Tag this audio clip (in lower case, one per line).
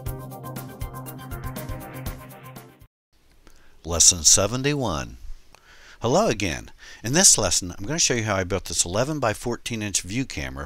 speech